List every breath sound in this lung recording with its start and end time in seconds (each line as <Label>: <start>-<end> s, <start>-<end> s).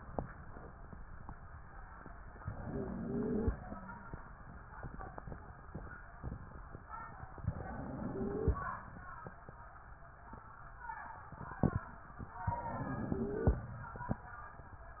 Inhalation: 2.41-3.55 s, 7.44-8.58 s, 12.50-13.64 s
Wheeze: 2.41-3.55 s, 7.44-8.58 s, 12.50-13.64 s